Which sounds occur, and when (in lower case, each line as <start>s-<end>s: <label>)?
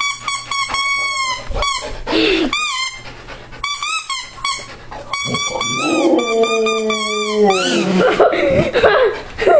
0.0s-1.4s: squeak
0.0s-2.0s: pant (dog)
0.0s-9.5s: background noise
1.6s-1.8s: squeak
2.0s-2.5s: breathing
2.5s-3.1s: squeak
3.0s-5.1s: pant (dog)
3.6s-4.7s: squeak
5.1s-7.8s: squeak
5.6s-8.1s: howl
7.8s-9.2s: laughter
8.1s-9.5s: pant (dog)
8.3s-8.7s: breathing
9.4s-9.5s: laughter